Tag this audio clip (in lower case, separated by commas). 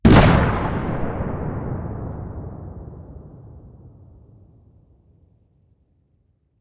explosion, boom